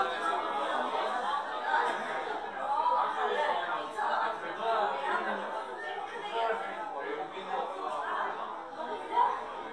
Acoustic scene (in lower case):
crowded indoor space